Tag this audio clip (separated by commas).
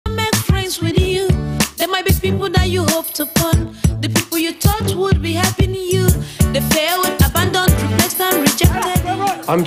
Music